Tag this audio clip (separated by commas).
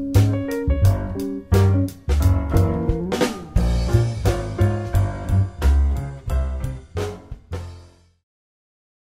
Music